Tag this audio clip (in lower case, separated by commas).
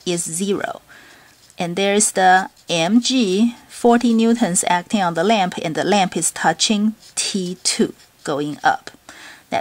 speech